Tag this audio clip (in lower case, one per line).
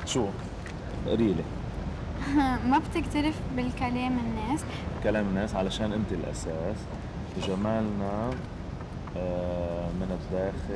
speech